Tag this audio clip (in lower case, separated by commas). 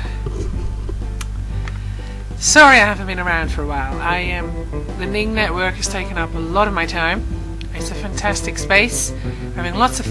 music, speech